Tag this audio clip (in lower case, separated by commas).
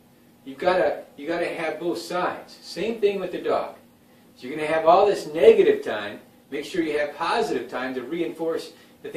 speech